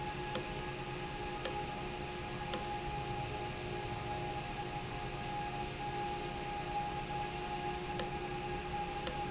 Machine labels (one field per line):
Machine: valve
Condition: abnormal